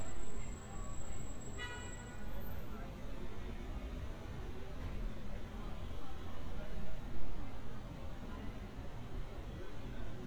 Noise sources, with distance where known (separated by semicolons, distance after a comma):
car horn, far